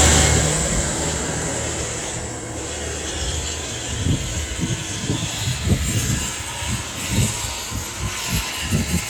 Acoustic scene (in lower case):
street